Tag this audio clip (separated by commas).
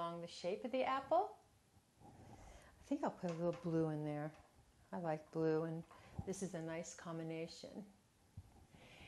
Speech